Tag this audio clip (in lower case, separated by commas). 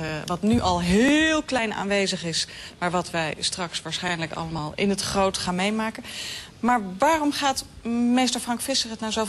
speech